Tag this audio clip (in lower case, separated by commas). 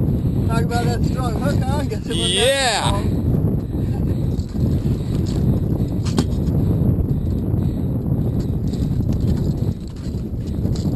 water vehicle, speech, outside, rural or natural